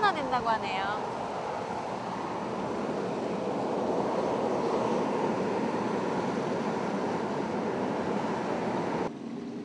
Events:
[0.00, 1.01] woman speaking
[0.00, 9.07] eruption
[9.05, 9.64] wind

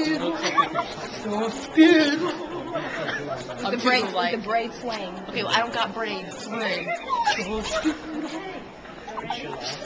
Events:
[0.00, 0.82] man speaking
[0.00, 0.84] female singing
[0.00, 8.68] speech babble
[0.48, 0.97] laughter
[1.25, 3.04] female singing
[2.54, 3.72] man speaking
[2.59, 3.70] laughter
[3.52, 5.01] woman speaking
[3.54, 9.67] conversation
[5.36, 6.20] woman speaking
[6.48, 7.01] woman speaking
[6.85, 7.68] laughter
[7.18, 8.35] female singing
[7.32, 8.55] woman speaking
[8.93, 9.65] woman speaking
[9.02, 9.49] laughter
[9.02, 9.67] man speaking

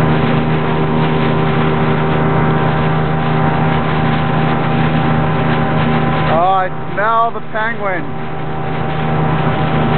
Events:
[0.00, 9.95] speedboat
[7.52, 7.99] man speaking
[9.90, 9.95] tick

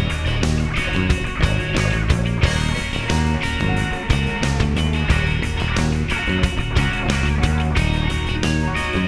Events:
[0.01, 9.05] music

